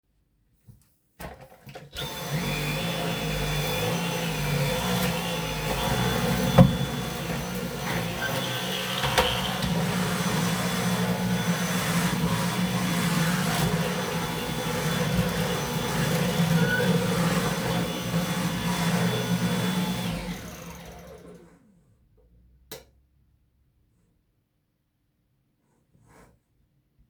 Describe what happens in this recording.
I started cleaning with the vacuum-cleaner, bumped into object, then wheel squeaked. Then I stopped cleaning and turned the light off.